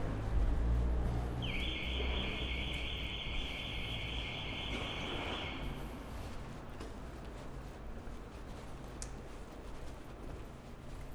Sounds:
car, motor vehicle (road), vehicle, alarm

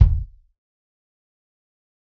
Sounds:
bass drum, drum, percussion, music, musical instrument

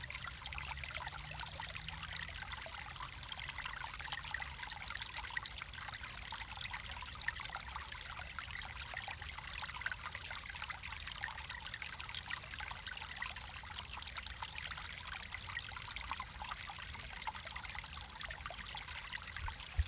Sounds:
water, stream, pour, dribble, liquid

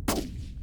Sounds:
explosion, gunshot

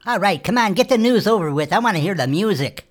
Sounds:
human voice

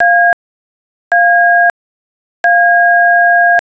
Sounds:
alarm, telephone

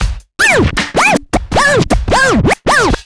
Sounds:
musical instrument, music, scratching (performance technique)

